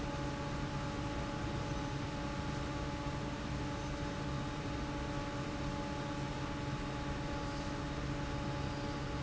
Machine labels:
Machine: fan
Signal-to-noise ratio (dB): -6 dB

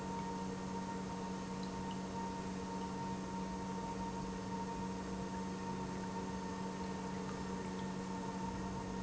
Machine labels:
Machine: pump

